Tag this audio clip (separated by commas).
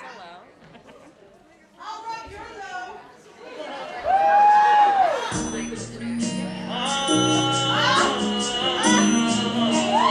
Speech, Male singing, Music, Pop music